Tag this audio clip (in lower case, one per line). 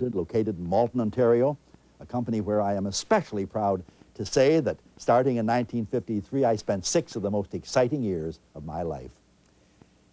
speech